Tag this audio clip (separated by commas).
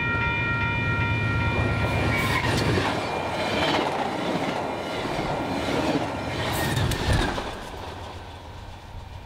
train horning